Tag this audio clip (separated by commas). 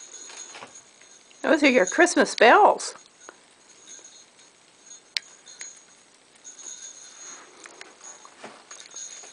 Speech